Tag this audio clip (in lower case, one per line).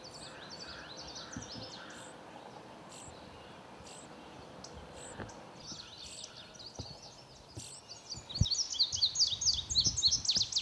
bird